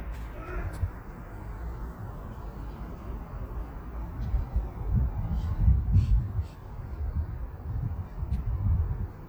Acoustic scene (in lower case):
residential area